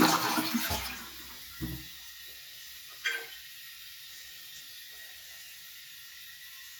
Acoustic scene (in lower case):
restroom